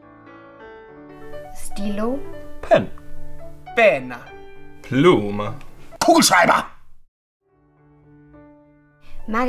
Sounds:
music, speech

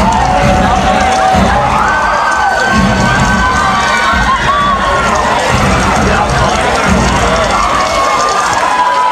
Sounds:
music, speech

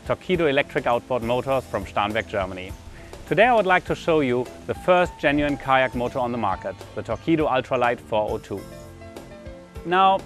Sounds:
speech, music

